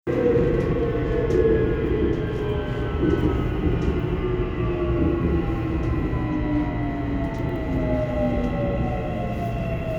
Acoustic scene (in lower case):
subway train